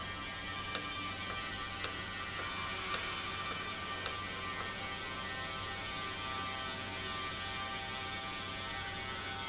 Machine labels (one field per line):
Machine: valve